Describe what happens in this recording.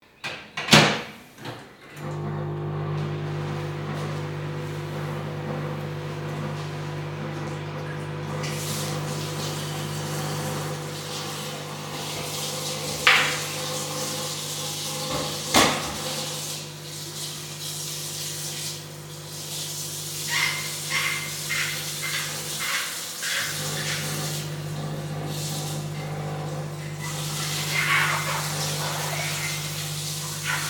I close the microwave and start it. Then I turn on the tap to clean a glass using a sponge and dishwashing soap, causing a squeaking sound.